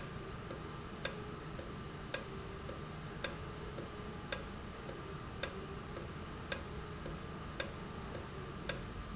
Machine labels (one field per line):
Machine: valve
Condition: normal